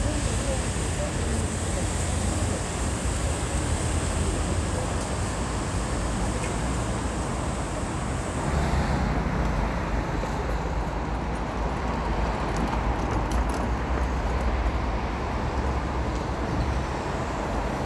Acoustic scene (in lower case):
street